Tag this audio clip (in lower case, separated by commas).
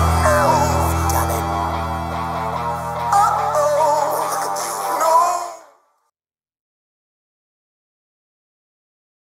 speech, music